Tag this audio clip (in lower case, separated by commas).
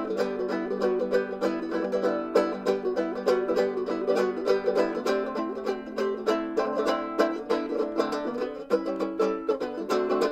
banjo, musical instrument, playing banjo, guitar, mandolin, music